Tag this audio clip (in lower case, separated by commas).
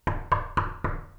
knock, door, home sounds